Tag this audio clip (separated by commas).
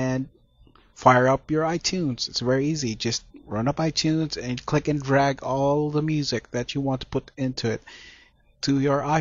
Speech